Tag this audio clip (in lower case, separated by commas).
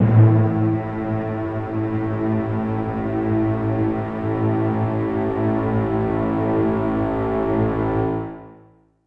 music, musical instrument